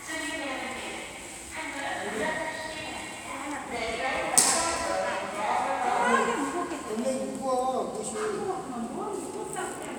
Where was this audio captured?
in a subway station